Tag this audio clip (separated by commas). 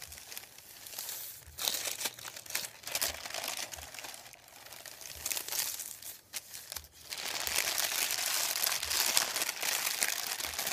ripping paper